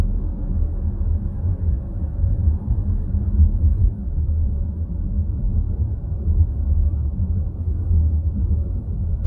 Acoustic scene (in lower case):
car